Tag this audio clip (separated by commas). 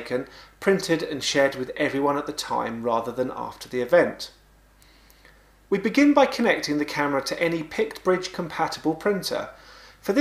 Speech